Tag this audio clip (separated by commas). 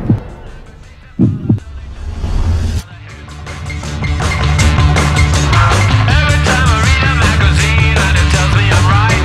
Music